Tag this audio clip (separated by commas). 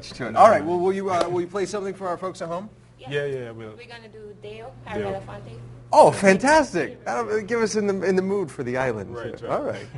Conversation, Speech